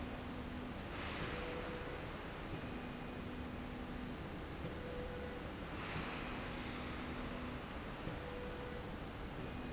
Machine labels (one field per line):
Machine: slide rail